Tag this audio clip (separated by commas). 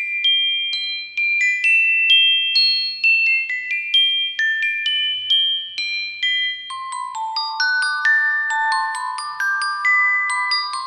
Mallet percussion, xylophone, Glockenspiel, playing marimba